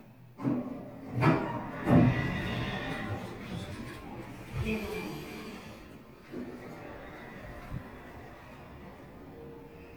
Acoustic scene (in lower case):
elevator